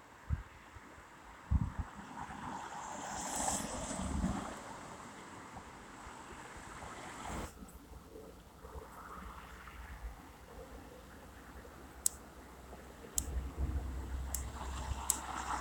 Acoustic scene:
street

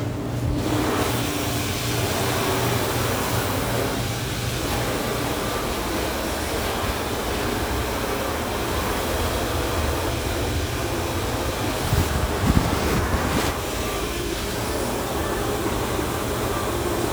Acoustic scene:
restaurant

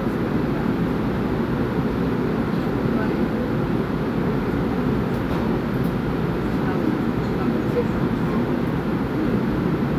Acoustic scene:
subway train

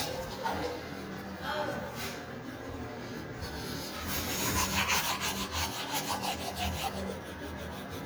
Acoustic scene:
restroom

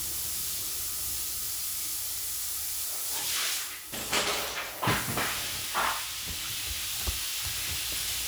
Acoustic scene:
restroom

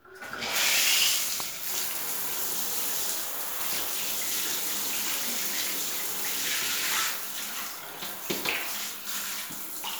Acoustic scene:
restroom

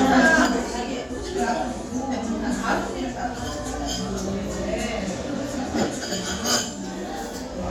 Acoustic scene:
restaurant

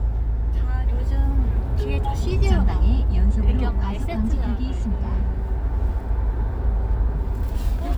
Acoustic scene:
car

